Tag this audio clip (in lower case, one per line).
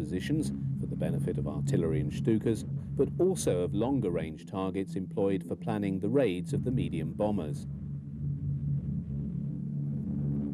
speech